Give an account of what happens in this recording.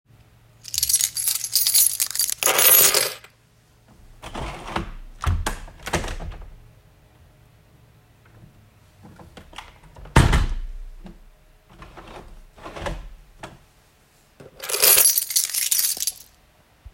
First thing that I did, when came to the office in the morning, was opening the window.